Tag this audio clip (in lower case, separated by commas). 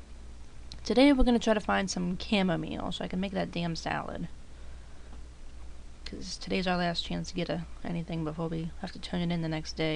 speech